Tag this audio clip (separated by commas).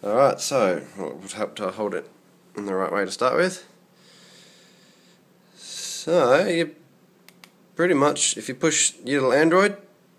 Speech